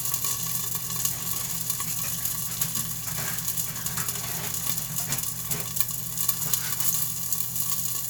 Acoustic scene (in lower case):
kitchen